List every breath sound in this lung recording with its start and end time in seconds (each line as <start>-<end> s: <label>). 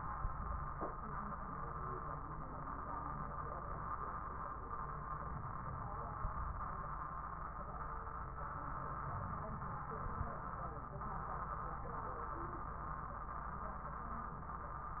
9.13-10.36 s: inhalation